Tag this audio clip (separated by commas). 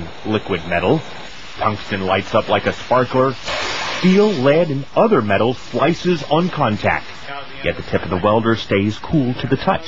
Speech